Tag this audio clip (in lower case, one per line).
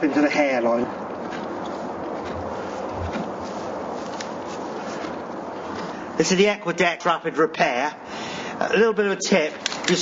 speech